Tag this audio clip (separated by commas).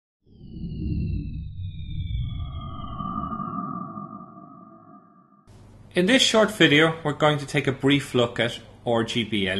Music, Speech